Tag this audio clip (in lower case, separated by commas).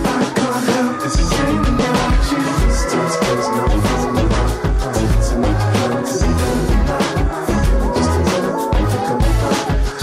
music